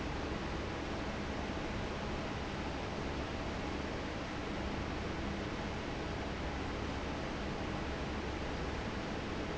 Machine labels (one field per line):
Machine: fan